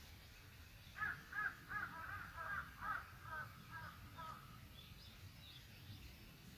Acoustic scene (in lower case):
park